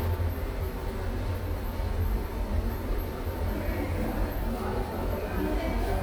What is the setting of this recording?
subway station